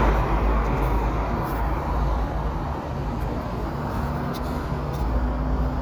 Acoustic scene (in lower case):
street